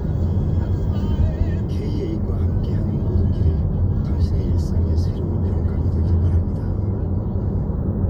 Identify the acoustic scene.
car